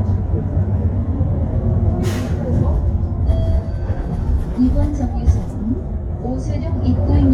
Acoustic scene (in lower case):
bus